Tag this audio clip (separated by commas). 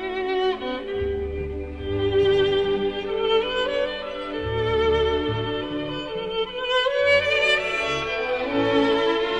Music, Musical instrument, fiddle